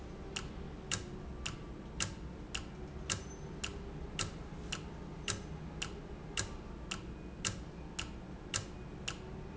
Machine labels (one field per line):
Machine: valve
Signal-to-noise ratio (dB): 0 dB